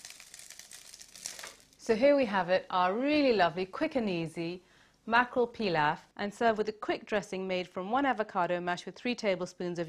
Something crumples and crinkles, and then a woman speaks